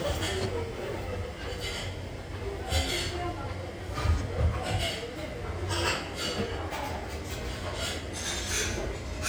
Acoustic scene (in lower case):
restaurant